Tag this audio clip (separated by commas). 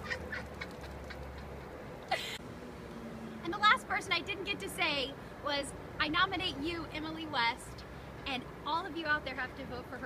Speech